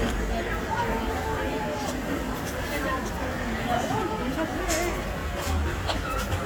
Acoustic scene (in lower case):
crowded indoor space